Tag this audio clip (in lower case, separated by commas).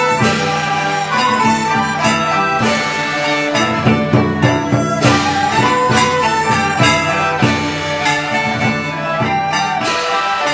traditional music, classical music, music